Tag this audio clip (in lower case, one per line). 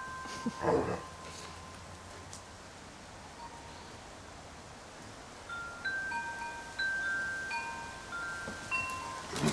chime
wind chime